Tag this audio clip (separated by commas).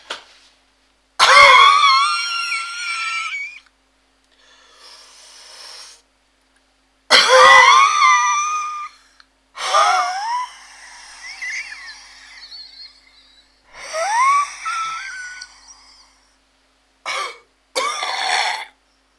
Respiratory sounds, Cough